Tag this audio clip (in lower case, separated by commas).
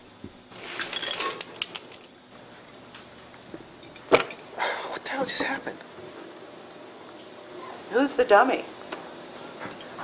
speech